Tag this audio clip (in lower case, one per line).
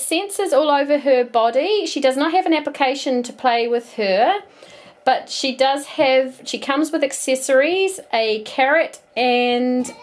speech